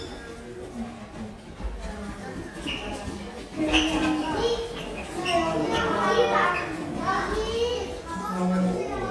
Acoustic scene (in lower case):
elevator